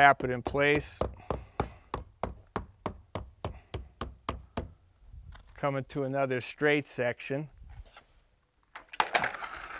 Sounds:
outside, rural or natural, Speech

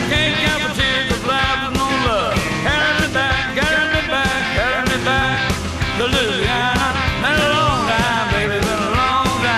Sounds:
Piano, Electric piano, Keyboard (musical)

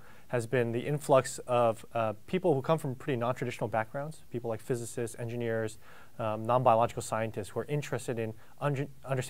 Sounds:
Speech

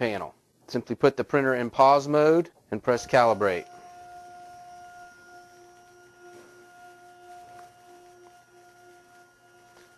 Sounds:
Speech, Printer

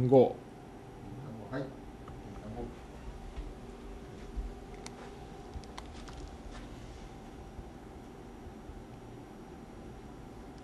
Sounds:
Speech

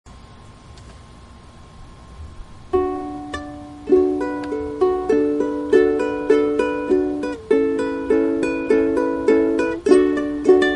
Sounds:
playing ukulele

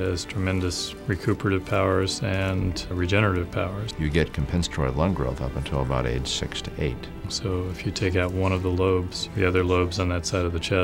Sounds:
Speech, Music

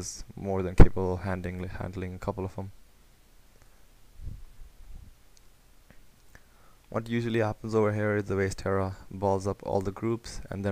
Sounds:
Speech, monologue

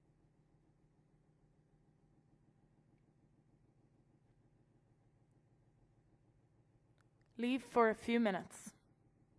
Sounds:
Speech, Silence

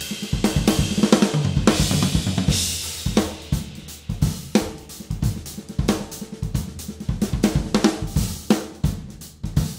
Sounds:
Drum, Drum kit, Musical instrument, Music

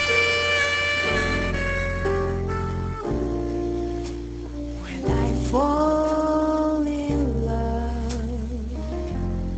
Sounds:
Music, Jazz

